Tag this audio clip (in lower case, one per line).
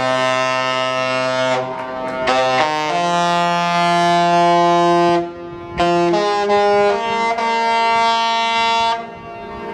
music